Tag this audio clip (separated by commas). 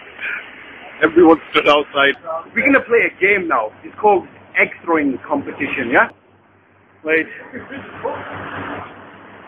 Speech